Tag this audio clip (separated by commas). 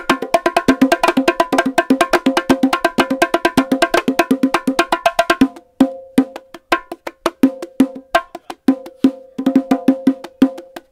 playing bongo